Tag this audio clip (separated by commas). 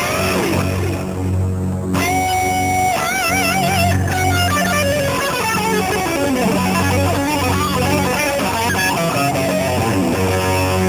Music